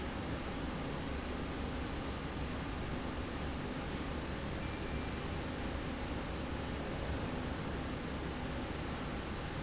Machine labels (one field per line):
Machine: slide rail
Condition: normal